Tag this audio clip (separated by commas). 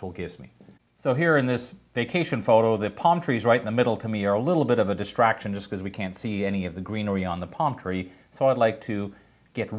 Speech